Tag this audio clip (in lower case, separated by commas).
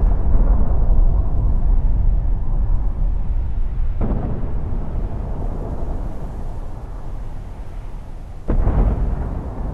explosion